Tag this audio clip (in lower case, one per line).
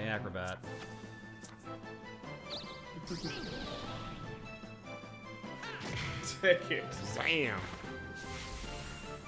music
speech